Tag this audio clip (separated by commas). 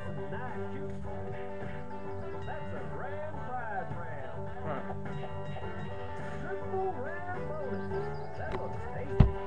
Speech, Music